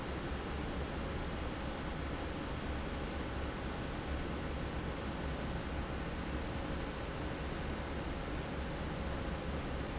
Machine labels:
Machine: fan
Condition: normal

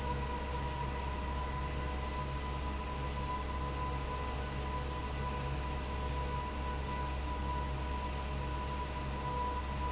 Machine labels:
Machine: fan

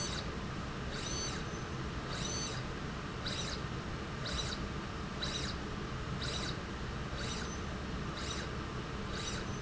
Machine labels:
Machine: slide rail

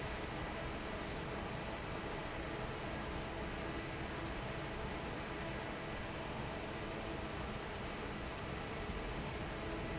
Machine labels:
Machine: fan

